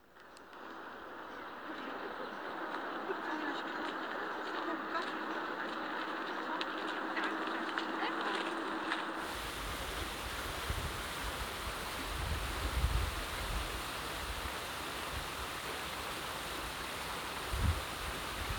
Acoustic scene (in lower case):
park